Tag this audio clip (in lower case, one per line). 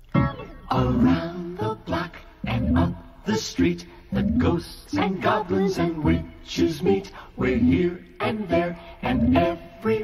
music